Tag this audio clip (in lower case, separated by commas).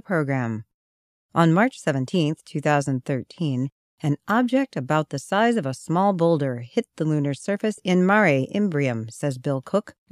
speech